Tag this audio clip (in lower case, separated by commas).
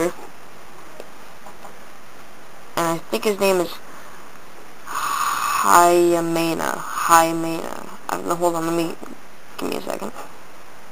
speech